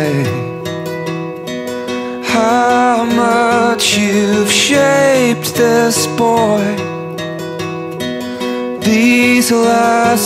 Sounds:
Acoustic guitar, Music

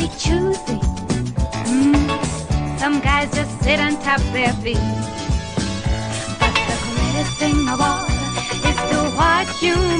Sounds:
Music

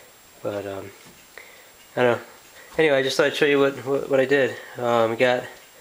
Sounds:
Speech

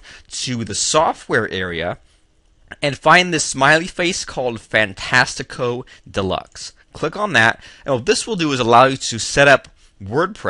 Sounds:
Speech

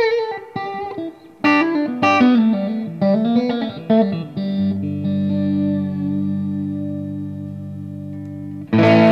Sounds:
Guitar, Musical instrument, inside a small room, Plucked string instrument, Music

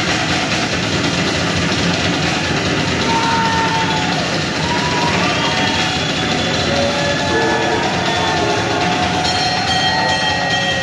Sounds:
Music, Cymbal, Drum kit, Drum, Musical instrument

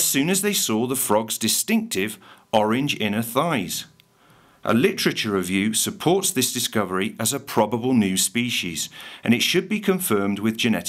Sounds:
Speech

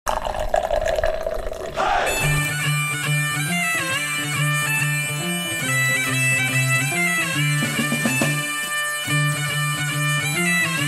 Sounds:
Music

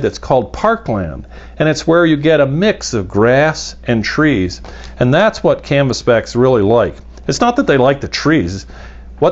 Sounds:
Speech

